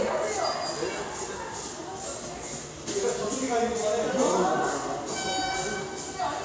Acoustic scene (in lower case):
subway station